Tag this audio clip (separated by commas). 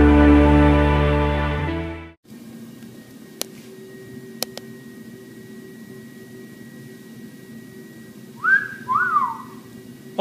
Music, inside a small room, Speech